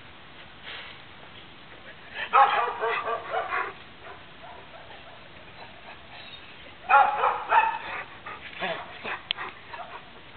Several dogs bark and a dog is panting